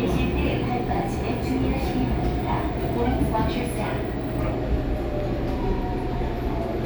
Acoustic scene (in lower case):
subway train